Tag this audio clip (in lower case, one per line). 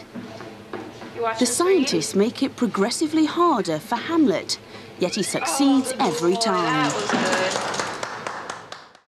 speech